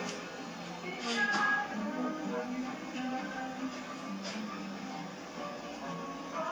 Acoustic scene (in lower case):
cafe